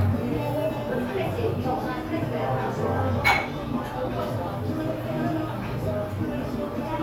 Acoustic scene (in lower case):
cafe